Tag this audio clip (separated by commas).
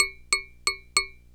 Tap